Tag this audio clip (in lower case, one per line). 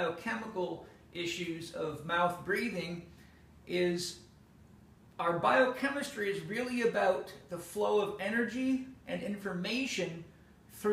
speech